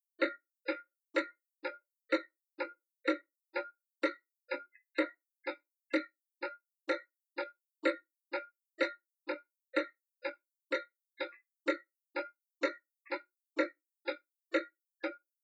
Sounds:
Clock, Mechanisms

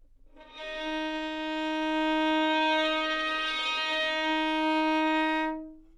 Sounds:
Music, Musical instrument, Bowed string instrument

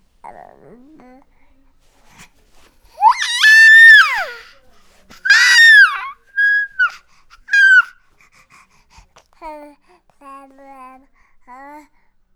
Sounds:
Human voice, sobbing

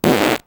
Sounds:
Fart

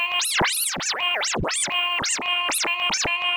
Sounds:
Musical instrument, Music, Scratching (performance technique)

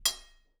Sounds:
home sounds, silverware

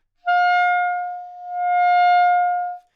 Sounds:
Music, Musical instrument, woodwind instrument

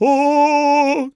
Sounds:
Singing, Male singing, Human voice

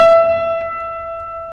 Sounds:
Music, Keyboard (musical), Musical instrument

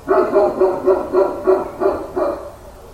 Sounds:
Domestic animals, Dog, Bark, Animal

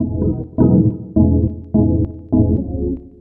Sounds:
Music, Organ, Keyboard (musical), Musical instrument

